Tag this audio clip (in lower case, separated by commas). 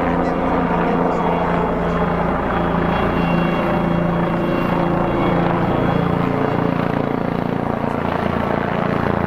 helicopter, vehicle, aircraft